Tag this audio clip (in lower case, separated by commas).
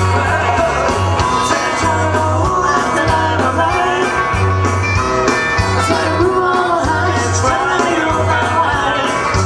singing, music